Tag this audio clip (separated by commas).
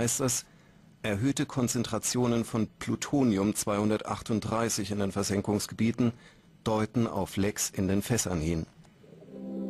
Speech, Music